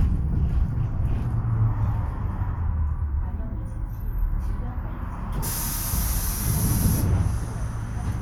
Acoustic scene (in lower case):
bus